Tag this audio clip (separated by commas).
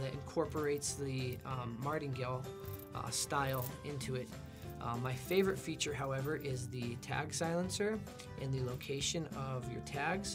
Speech, Music